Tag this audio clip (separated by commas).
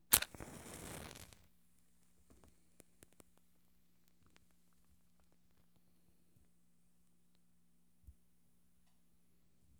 Fire